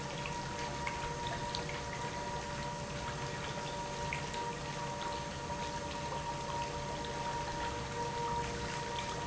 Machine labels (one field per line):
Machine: pump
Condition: normal